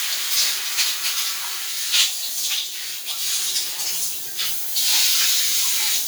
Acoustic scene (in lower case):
restroom